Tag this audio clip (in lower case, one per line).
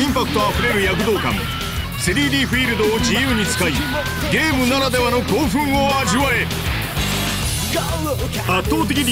music
speech